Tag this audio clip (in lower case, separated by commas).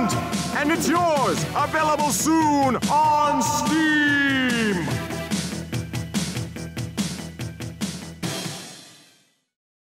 speech, music